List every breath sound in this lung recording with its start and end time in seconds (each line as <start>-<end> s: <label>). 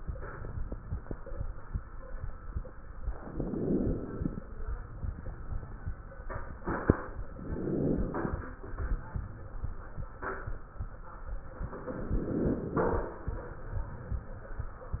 3.17-4.46 s: inhalation
7.30-8.60 s: inhalation
11.76-13.05 s: inhalation